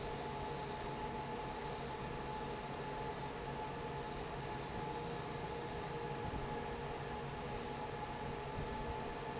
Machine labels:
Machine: fan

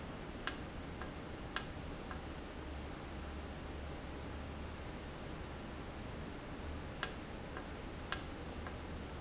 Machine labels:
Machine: valve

